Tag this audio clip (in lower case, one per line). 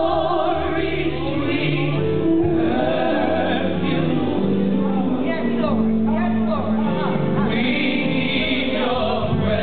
music
speech